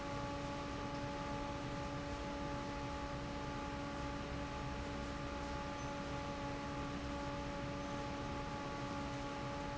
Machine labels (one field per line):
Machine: fan